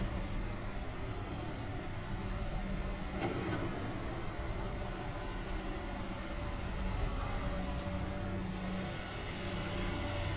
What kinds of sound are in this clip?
unidentified impact machinery